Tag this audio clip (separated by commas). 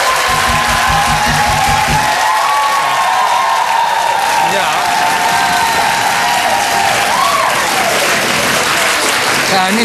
Speech